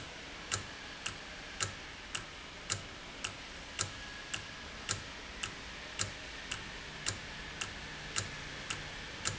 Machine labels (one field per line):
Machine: valve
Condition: normal